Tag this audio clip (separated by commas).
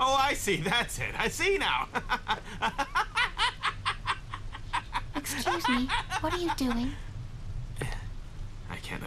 Speech